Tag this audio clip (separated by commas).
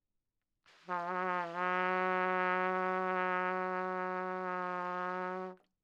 Trumpet, Music, Musical instrument, Brass instrument